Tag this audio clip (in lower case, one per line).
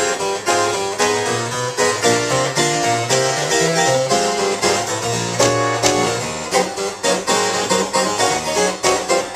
playing harpsichord